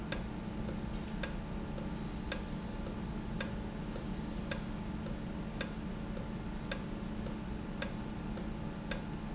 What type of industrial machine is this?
valve